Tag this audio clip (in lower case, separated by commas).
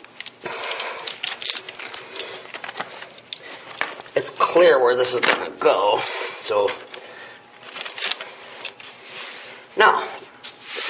speech